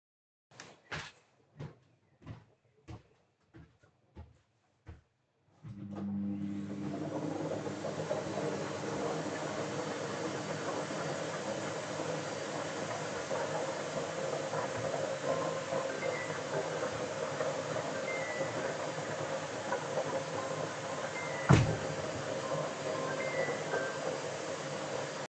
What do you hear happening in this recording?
i walked to the vacuum cleaner then turned it on. My phone rang then i went to close the window